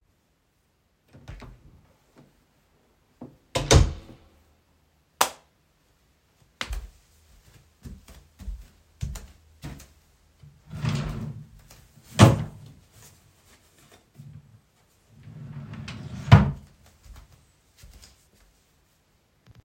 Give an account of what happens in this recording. I opened the door to enter my room. I then turned on the light switch. After that, I opened the drawer to take my socks and closed the drawer.